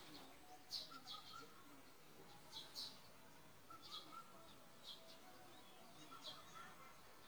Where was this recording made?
in a park